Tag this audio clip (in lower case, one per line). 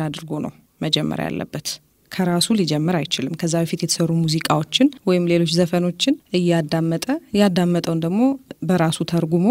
speech